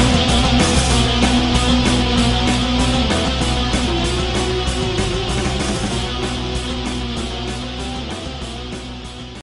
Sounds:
music

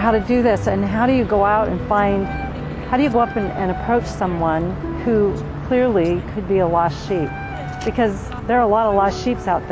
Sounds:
speech, music

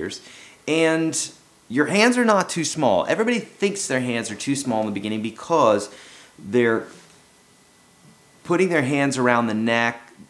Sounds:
speech

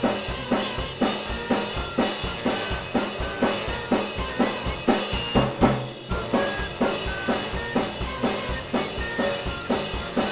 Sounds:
drum kit, bass drum, drum, rimshot, percussion, snare drum

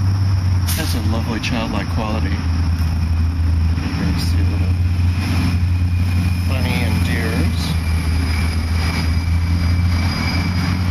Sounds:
speech, outside, urban or man-made, aircraft

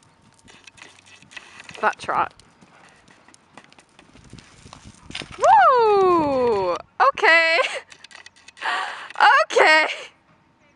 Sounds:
animal, horse, outside, rural or natural, livestock, speech

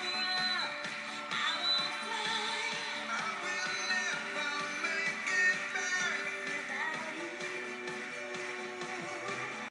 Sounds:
music

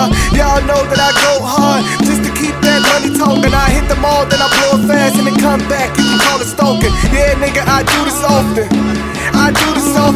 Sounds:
music

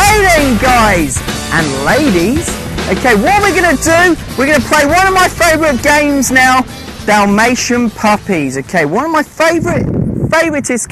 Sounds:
music, speech

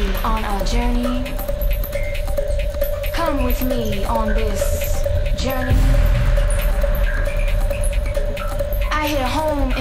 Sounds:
speech, music

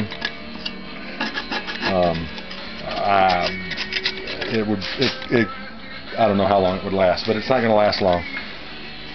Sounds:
speech, music

